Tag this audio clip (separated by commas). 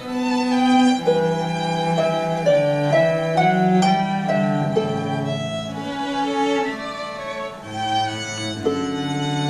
Musical instrument, Cello, fiddle, playing cello, Pizzicato, Music